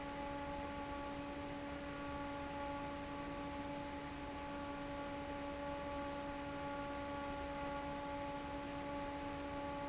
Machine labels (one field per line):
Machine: fan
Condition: normal